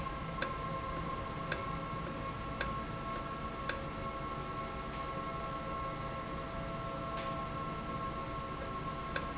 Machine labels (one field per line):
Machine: valve